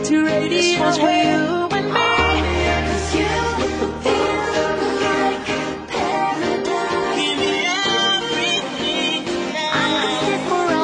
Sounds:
Music

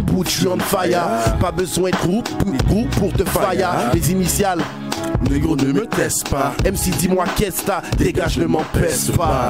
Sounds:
Music

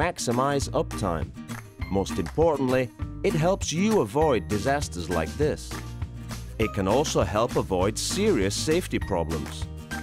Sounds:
Music, Speech

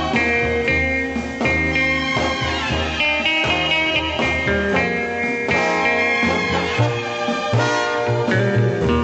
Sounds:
Music

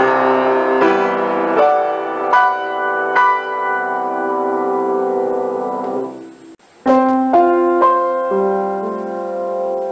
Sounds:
Music

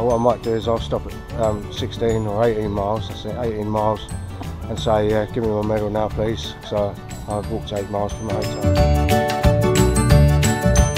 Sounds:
Music, Speech

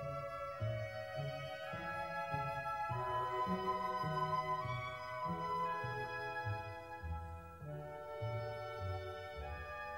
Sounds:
Musical instrument, Violin, Music, Pizzicato

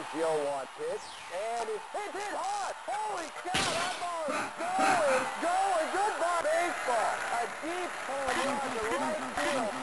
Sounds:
Speech

